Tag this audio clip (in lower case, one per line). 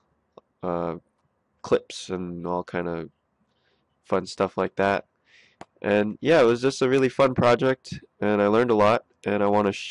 speech